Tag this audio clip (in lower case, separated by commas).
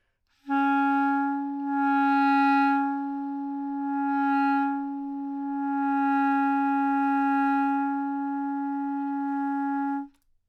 music, wind instrument, musical instrument